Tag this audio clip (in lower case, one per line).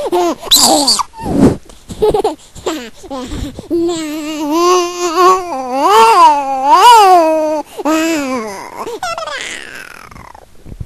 sound effect
laughter